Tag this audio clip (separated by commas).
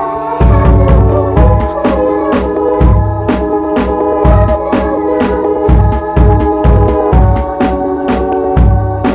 Music